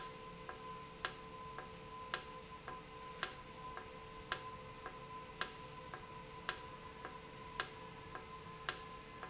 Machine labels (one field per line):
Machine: valve